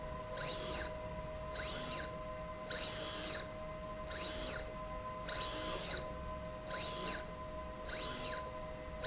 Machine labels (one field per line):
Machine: slide rail